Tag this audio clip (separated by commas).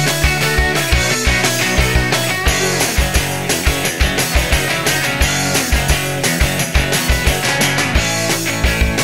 Music